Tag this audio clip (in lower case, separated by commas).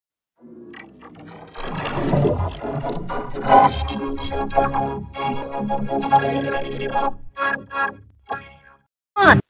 speech, music